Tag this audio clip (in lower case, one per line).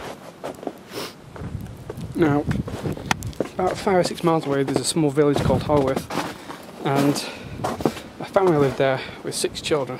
speech